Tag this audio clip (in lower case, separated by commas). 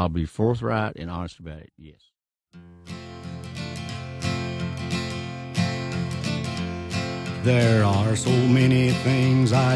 country, speech, music